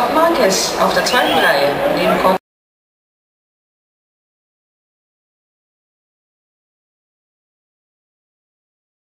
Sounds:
speech

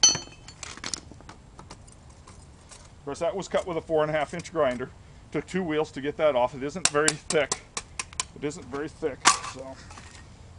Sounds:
speech

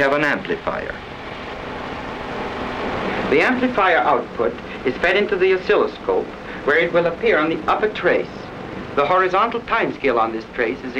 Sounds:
speech

